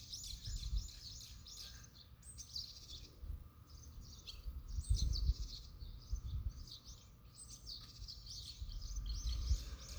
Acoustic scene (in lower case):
park